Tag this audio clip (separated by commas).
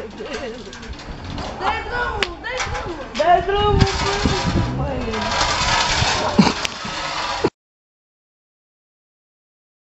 Speech